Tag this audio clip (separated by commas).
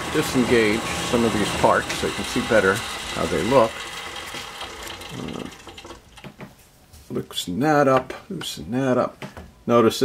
Speech, Power tool